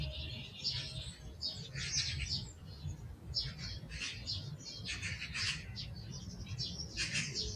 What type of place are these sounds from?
park